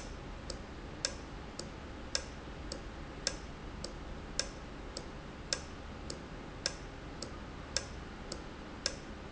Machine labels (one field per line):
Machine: valve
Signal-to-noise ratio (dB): 0 dB